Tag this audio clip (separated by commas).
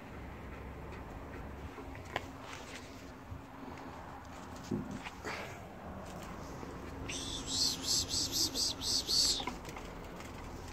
ferret dooking